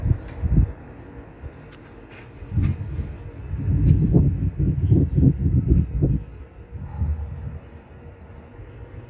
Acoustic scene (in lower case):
residential area